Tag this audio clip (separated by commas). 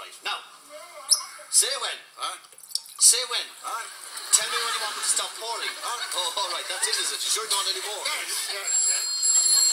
Speech